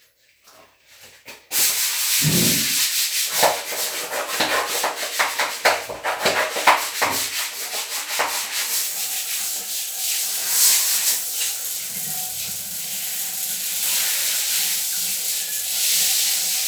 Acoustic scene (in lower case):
restroom